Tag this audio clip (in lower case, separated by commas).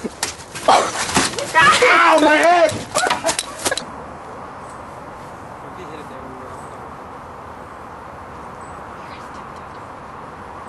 outside, rural or natural, speech